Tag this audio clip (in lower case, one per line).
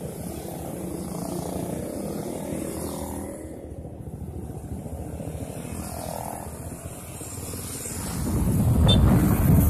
motorcycle
vehicle